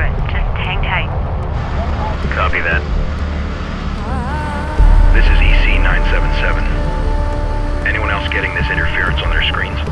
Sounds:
police radio chatter

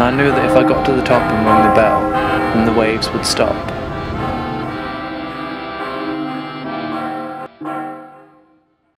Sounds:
music
speech

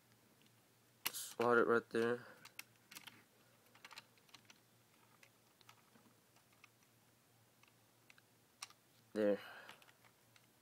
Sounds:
speech

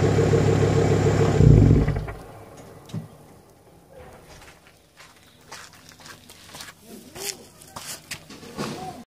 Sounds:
walk

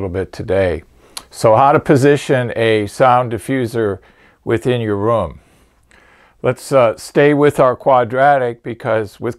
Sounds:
speech

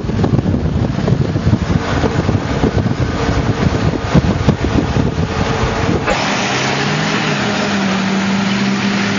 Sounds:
truck
vehicle

